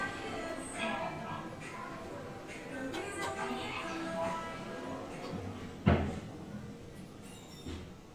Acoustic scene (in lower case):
elevator